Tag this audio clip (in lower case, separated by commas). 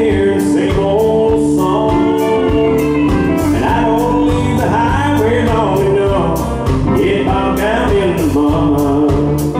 country, music